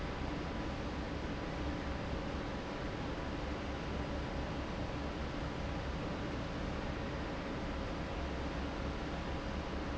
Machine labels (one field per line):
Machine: fan